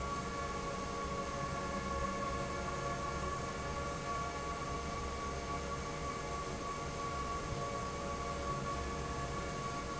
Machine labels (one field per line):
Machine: fan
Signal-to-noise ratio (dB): -6 dB